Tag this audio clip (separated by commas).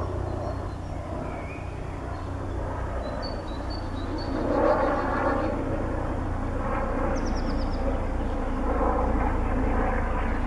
Animal, Bird